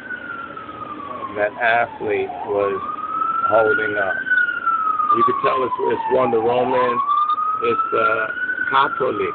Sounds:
inside a small room
speech

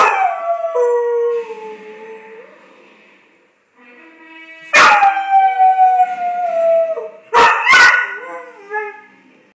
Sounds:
yip

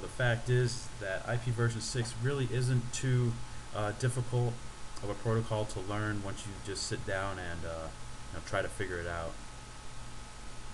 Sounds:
hum

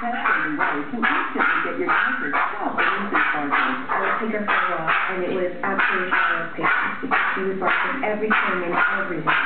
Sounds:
dog
bow-wow
bark
canids
animal
pets
speech

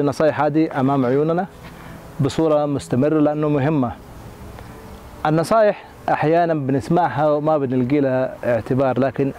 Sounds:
music
outside, rural or natural
speech

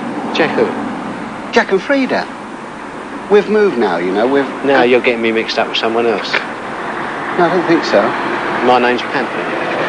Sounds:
speech

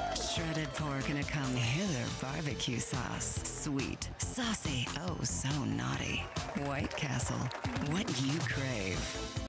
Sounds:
speech
music

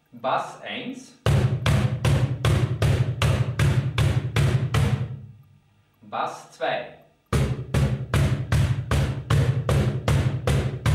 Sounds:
speech

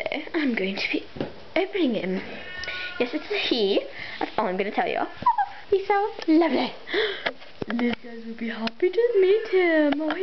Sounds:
speech

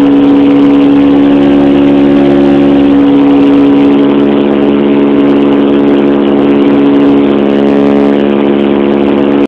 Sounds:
vehicle
aircraft

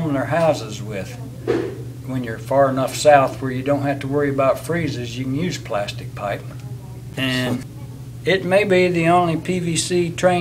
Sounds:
speech

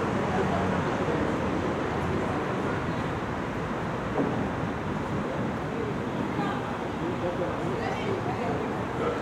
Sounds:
car
speech
outside, urban or man-made
vehicle

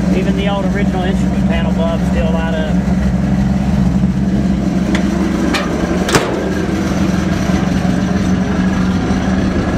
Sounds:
vehicle
speech

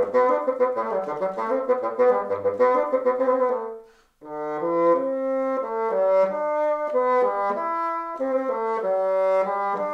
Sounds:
playing bassoon

